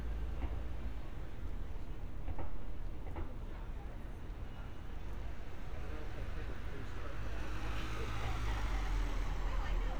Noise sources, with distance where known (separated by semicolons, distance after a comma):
medium-sounding engine, near; person or small group talking, near